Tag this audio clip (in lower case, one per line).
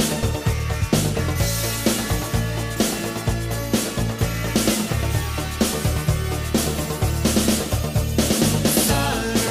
music